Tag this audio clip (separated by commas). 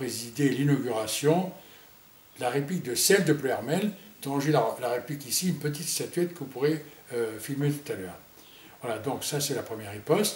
Speech, inside a small room